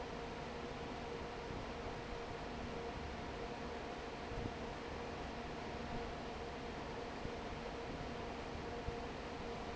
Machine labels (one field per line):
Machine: fan